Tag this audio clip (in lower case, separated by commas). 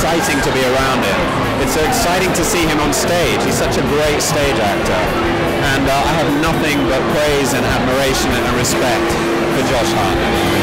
speech, music